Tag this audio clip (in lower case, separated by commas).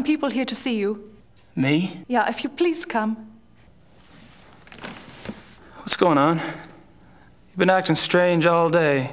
woman speaking